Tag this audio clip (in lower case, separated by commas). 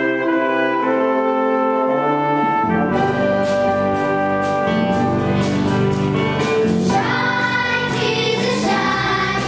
choir, music, brass instrument, singing